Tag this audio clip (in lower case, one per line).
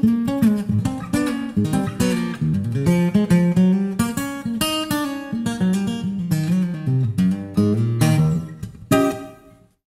music
strum
acoustic guitar
guitar
plucked string instrument
electric guitar
musical instrument